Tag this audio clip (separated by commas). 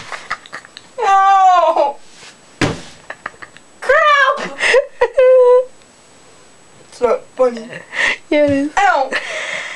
Speech